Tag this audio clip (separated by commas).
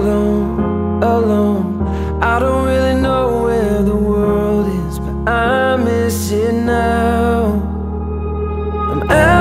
Music